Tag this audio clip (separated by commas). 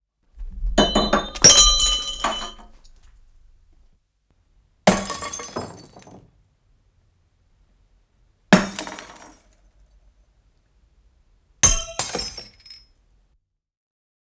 Glass, Shatter